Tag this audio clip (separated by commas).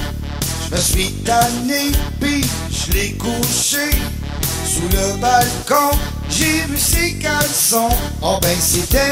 Music